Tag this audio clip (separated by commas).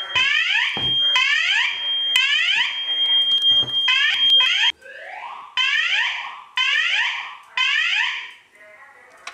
Fire alarm